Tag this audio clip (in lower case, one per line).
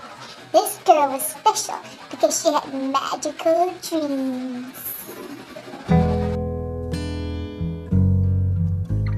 music
speech
bass guitar